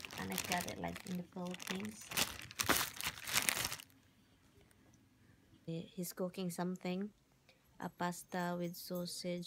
Paper is being crumpled and an adult female speaks